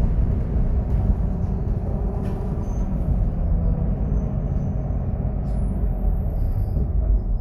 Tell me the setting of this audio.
bus